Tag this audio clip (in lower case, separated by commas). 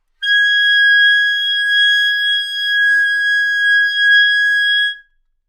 musical instrument, woodwind instrument, music